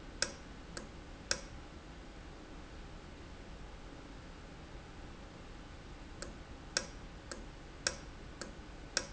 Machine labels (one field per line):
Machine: valve